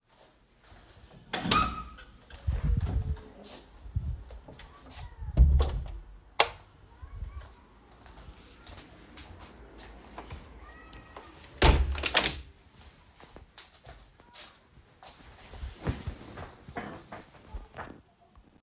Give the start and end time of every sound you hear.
1.3s-2.0s: door
5.3s-6.0s: door
6.4s-6.6s: light switch
11.6s-12.5s: window

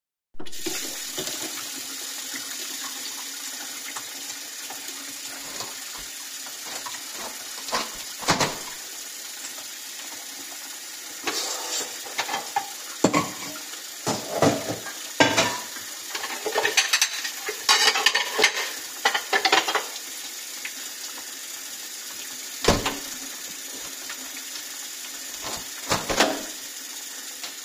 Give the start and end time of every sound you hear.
0.4s-27.6s: running water
7.6s-8.7s: window
12.2s-19.9s: cutlery and dishes
22.5s-23.1s: window
25.8s-26.5s: window

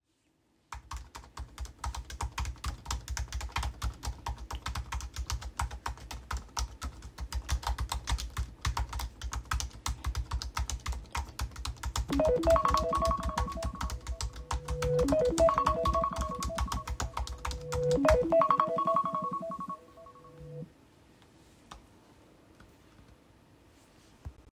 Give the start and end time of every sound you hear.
1.3s-19.1s: keyboard typing
11.9s-21.6s: phone ringing

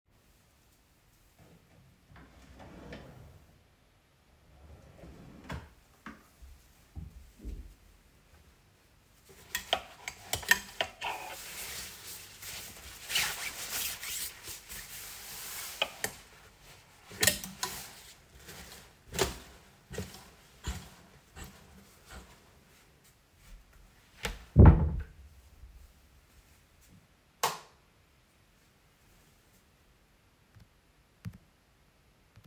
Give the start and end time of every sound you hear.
2.0s-6.3s: wardrobe or drawer
24.0s-25.2s: wardrobe or drawer
27.3s-27.8s: light switch

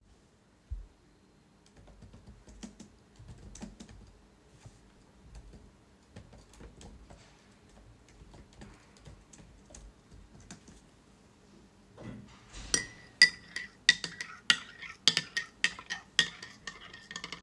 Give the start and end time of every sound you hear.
1.7s-10.9s: keyboard typing
12.5s-17.4s: cutlery and dishes

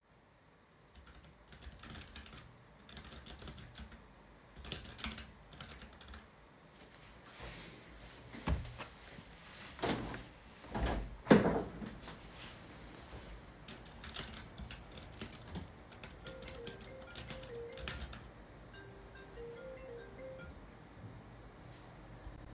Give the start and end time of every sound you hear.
0.9s-6.9s: keyboard typing
9.8s-12.1s: window
13.7s-18.6s: keyboard typing
16.4s-21.1s: phone ringing

